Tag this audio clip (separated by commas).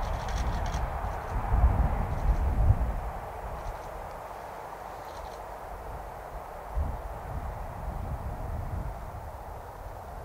Animal